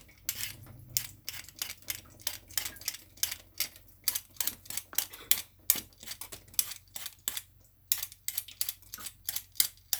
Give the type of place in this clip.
kitchen